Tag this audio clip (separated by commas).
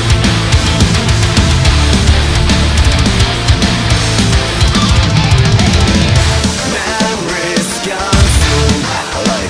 Music